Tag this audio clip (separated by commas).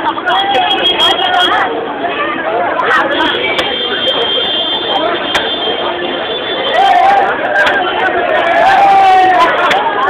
Speech